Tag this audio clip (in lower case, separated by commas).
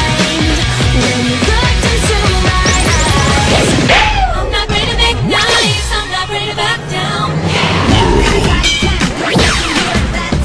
music